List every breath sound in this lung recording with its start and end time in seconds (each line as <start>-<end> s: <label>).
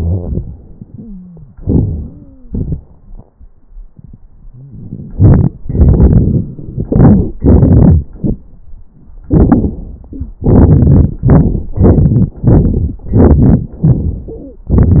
0.94-1.49 s: wheeze
1.91-2.47 s: wheeze
4.48-5.01 s: wheeze
10.14-10.36 s: wheeze
14.30-14.67 s: wheeze